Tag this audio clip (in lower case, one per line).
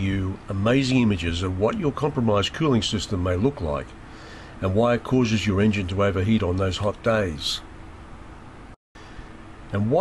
speech